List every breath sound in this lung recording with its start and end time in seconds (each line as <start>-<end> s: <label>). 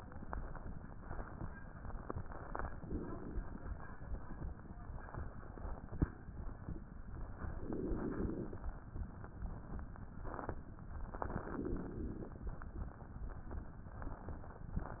2.57-3.72 s: inhalation
7.52-8.66 s: inhalation
11.18-12.46 s: inhalation